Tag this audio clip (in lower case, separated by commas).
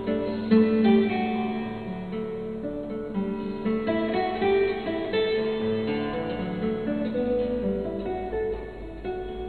playing acoustic guitar, acoustic guitar, plucked string instrument, guitar, music, musical instrument